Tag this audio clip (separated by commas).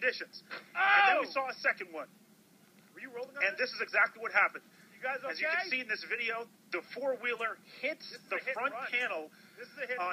Speech